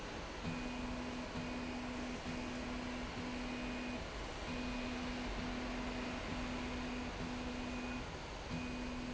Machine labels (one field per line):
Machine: slide rail